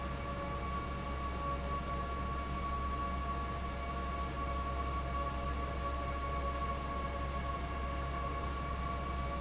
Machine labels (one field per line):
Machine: fan